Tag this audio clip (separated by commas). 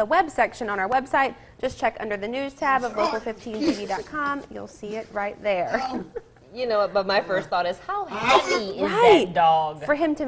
inside a small room, Speech